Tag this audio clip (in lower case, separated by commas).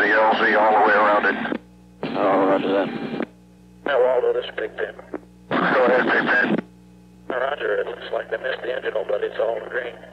police radio chatter